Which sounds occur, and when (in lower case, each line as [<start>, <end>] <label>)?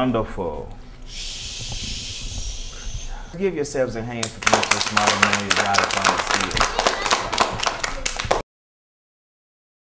[0.00, 0.76] man speaking
[0.00, 8.27] conversation
[0.00, 8.38] mechanisms
[0.65, 0.96] breathing
[1.01, 3.06] human sounds
[1.52, 2.38] generic impact sounds
[2.63, 3.33] breathing
[3.29, 6.71] man speaking
[4.20, 8.39] clapping
[6.48, 6.66] generic impact sounds
[6.53, 8.30] kid speaking
[7.37, 7.60] generic impact sounds
[8.14, 8.39] generic impact sounds